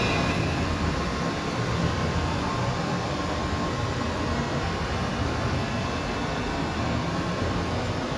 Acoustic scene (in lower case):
subway station